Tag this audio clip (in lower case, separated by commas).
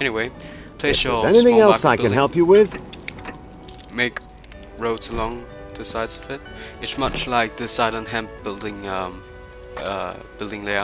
speech, music